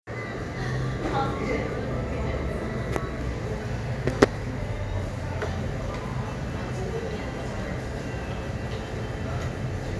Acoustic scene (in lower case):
crowded indoor space